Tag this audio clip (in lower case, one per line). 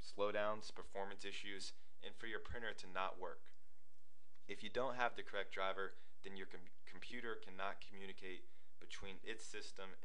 speech